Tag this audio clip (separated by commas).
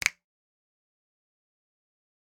Hands, Finger snapping